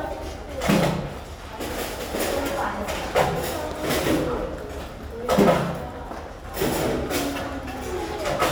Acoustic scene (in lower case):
restaurant